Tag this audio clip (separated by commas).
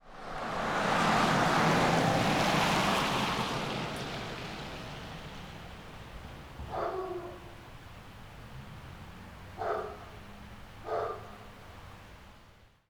Rain, Dog, pets, Animal, Water